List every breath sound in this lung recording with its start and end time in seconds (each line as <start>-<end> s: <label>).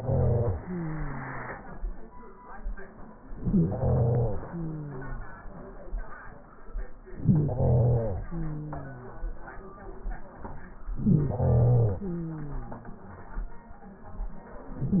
0.00-0.58 s: inhalation
0.63-1.90 s: exhalation
3.29-4.46 s: inhalation
4.43-5.60 s: exhalation
7.01-8.30 s: inhalation
8.30-9.59 s: exhalation
10.95-11.99 s: inhalation
11.98-13.03 s: exhalation